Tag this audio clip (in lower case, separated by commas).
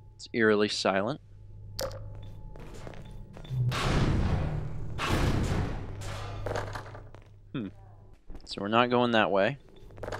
speech, inside a large room or hall